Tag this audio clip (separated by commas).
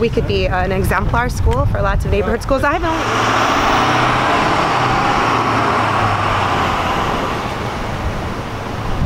Speech, outside, urban or man-made